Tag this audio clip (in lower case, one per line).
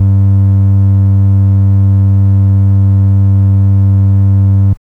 organ
keyboard (musical)
musical instrument
music